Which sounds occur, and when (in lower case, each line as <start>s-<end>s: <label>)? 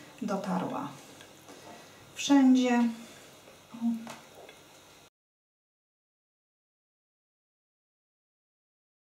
0.0s-5.1s: mechanisms
0.2s-1.0s: female speech
1.1s-1.3s: generic impact sounds
1.4s-2.1s: breathing
2.1s-2.9s: female speech
3.0s-3.7s: breathing
3.7s-4.1s: female speech
4.0s-4.1s: generic impact sounds
4.4s-4.5s: generic impact sounds
4.7s-4.8s: generic impact sounds